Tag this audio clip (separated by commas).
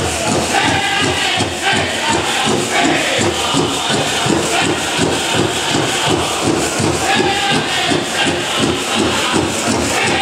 Music, Tambourine